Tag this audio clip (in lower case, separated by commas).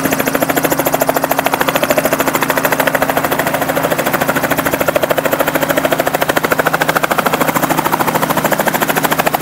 vehicle, helicopter